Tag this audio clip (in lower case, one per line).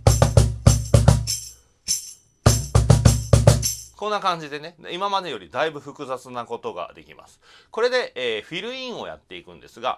playing tambourine